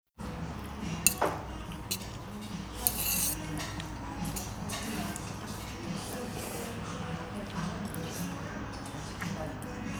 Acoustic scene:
restaurant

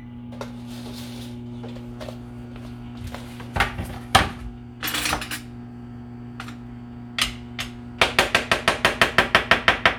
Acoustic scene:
kitchen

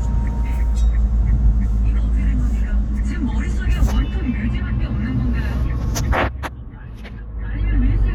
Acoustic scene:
car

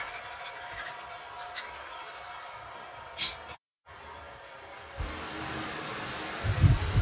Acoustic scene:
restroom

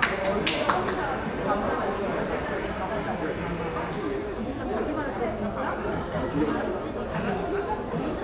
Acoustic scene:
crowded indoor space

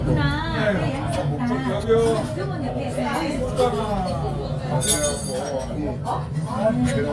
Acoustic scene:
restaurant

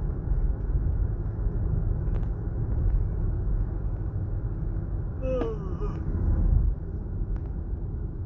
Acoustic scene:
car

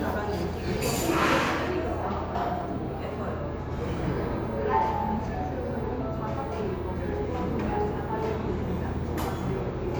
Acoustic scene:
cafe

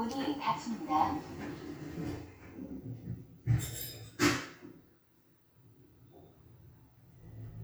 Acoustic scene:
elevator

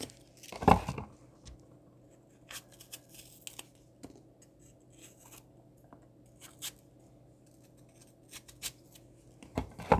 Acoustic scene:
kitchen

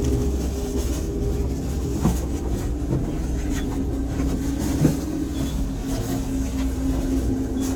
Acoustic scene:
bus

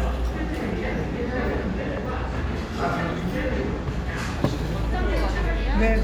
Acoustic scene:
crowded indoor space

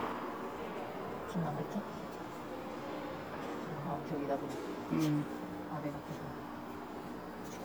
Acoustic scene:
subway station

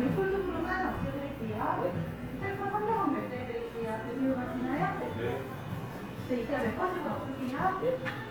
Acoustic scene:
cafe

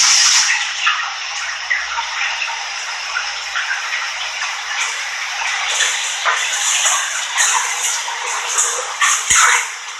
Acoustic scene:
restroom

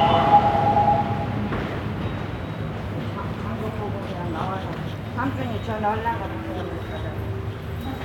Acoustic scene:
subway station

